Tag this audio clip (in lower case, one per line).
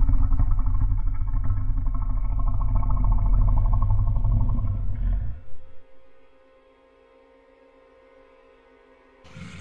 music